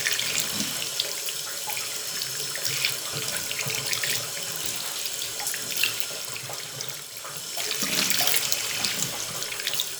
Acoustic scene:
restroom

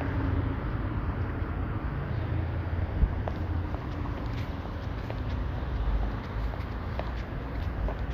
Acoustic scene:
street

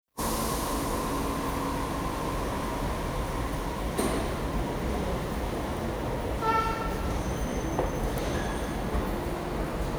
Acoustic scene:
subway station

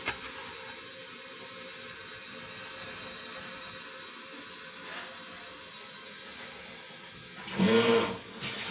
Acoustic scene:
kitchen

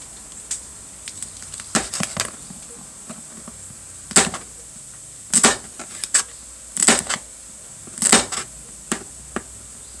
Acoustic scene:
kitchen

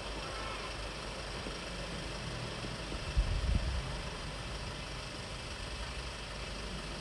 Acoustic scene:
residential area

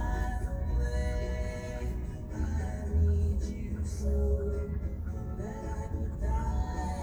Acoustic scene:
car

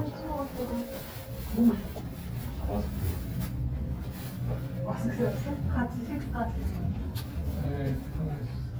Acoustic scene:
elevator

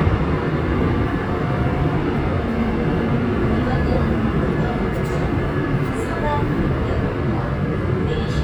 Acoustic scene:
subway train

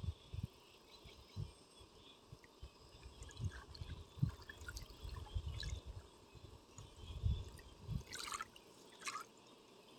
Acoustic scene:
park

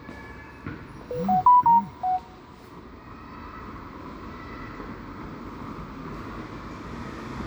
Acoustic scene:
residential area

